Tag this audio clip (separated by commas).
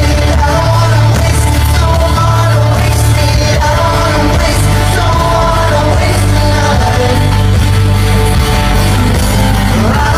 Music, inside a large room or hall, Singing